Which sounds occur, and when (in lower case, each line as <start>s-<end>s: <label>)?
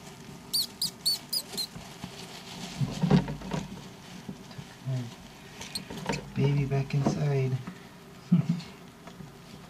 0.0s-0.4s: patter
0.0s-9.5s: mechanisms
0.5s-0.6s: mouse
0.8s-0.9s: mouse
1.0s-1.2s: mouse
1.1s-1.8s: patter
1.3s-1.4s: mouse
1.6s-1.7s: mouse
2.0s-3.0s: patter
2.8s-3.7s: generic impact sounds
3.7s-4.2s: patter
4.3s-5.5s: patter
4.8s-5.2s: human voice
5.7s-5.8s: mouse
5.8s-6.5s: generic impact sounds
6.0s-6.2s: mouse
6.3s-7.7s: male speech
7.0s-7.2s: generic impact sounds
7.6s-7.8s: generic impact sounds
8.3s-8.6s: chortle
9.0s-9.2s: generic impact sounds